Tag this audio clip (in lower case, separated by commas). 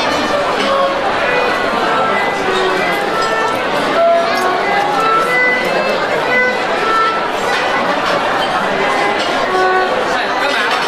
violin, musical instrument, speech, music